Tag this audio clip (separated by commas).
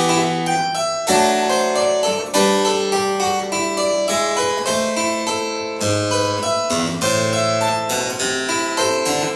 playing harpsichord